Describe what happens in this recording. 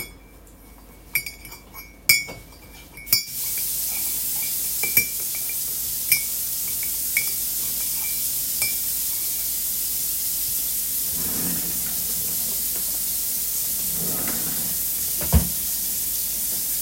I scraped a spoon against a cup and let water run from the tap. While the water is running I opened and closed my drawer.